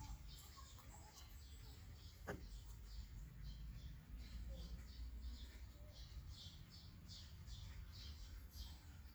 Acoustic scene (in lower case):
park